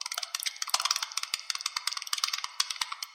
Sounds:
Animal, Insect, Wild animals

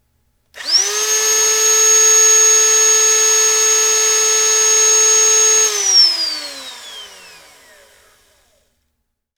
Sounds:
Tools, Sawing

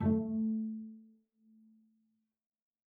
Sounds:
Musical instrument, Music, Bowed string instrument

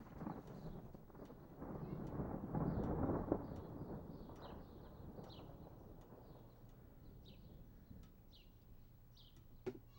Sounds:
Thunderstorm, Thunder

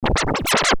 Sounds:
Scratching (performance technique), Musical instrument, Music

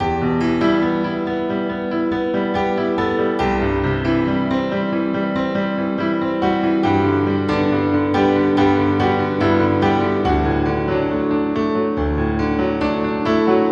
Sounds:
Musical instrument, Music, Keyboard (musical), Piano

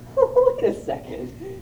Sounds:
Speech, Human voice

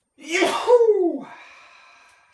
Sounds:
Sneeze, Respiratory sounds

